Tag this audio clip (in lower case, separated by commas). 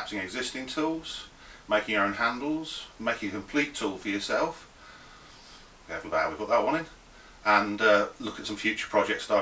speech